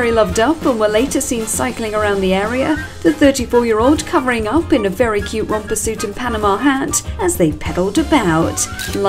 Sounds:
speech
music

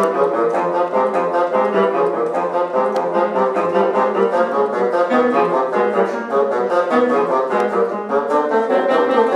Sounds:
playing bassoon

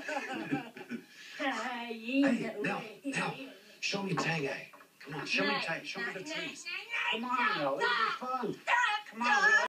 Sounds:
speech

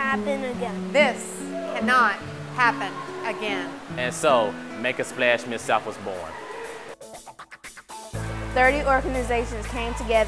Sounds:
speech
music

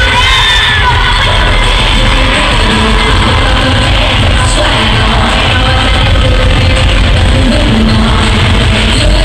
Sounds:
music

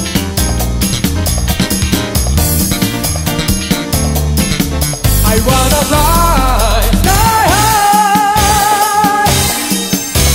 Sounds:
music

